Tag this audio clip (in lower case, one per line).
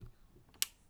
tick